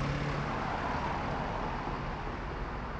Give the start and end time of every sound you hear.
0.0s-2.7s: bus
0.0s-2.7s: bus engine accelerating
0.1s-3.0s: car
0.1s-3.0s: car wheels rolling

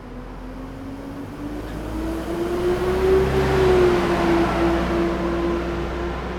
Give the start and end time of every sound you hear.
0.0s-0.9s: car
0.0s-0.9s: car wheels rolling
0.0s-6.4s: bus
0.0s-6.4s: bus engine accelerating
3.7s-6.4s: car
3.7s-6.4s: car wheels rolling

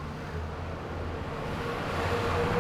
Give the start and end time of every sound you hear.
0.0s-2.1s: car
0.0s-2.1s: car wheels rolling
0.0s-2.6s: motorcycle
0.0s-2.6s: motorcycle engine accelerating
0.1s-2.6s: bus
0.1s-2.6s: bus engine accelerating

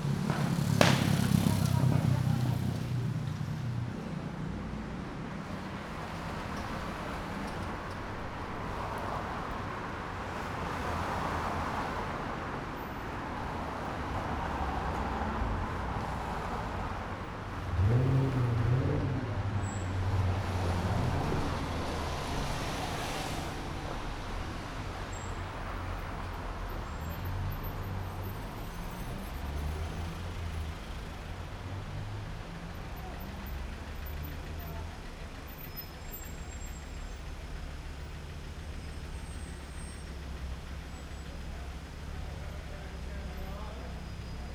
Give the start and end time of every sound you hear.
0.0s-1.1s: car
0.0s-1.1s: car wheels rolling
0.0s-4.1s: motorcycle engine idling
0.0s-5.8s: motorcycle
0.5s-1.1s: unclassified sound
1.3s-3.3s: people talking
3.5s-28.0s: car wheels rolling
3.5s-44.5s: car
4.1s-5.8s: motorcycle engine accelerating
17.5s-21.3s: car engine accelerating
19.6s-20.0s: bus brakes
19.6s-24.5s: bus wheels rolling
19.6s-36.8s: bus
21.6s-24.6s: bus engine accelerating
24.9s-28.5s: bus brakes
28.0s-44.5s: car engine idling
41.8s-44.4s: people talking

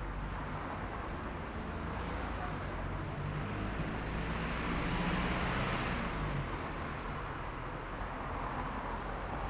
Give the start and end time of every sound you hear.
0.0s-3.0s: car
0.0s-3.0s: car wheels rolling
0.0s-7.8s: bus
0.0s-7.8s: bus engine accelerating
5.9s-9.5s: car
5.9s-9.5s: car wheels rolling

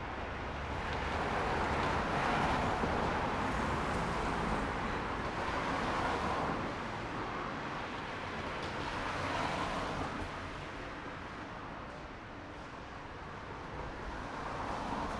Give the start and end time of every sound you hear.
0.0s-15.2s: car
0.0s-15.2s: car wheels rolling
3.0s-5.8s: car engine accelerating

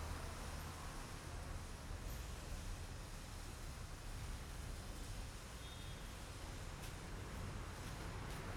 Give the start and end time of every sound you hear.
0.4s-0.7s: car
2.0s-2.2s: car
5.3s-6.0s: unclassified sound

